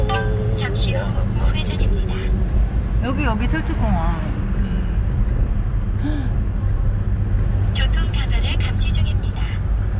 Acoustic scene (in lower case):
car